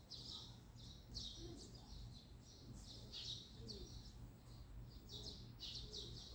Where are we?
in a residential area